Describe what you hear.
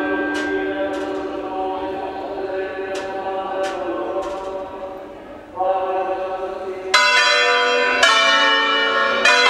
Man sound with bell chiming loudly